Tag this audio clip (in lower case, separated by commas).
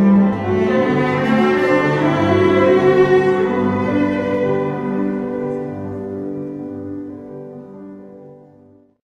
rhythm and blues, music, blues